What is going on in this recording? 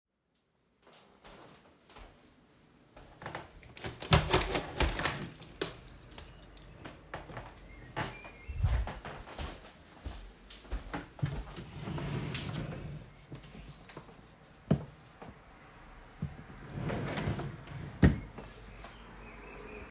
I opened a window, walked to my dresser and opened a drawer to find some clothes, and then closed the drawer again.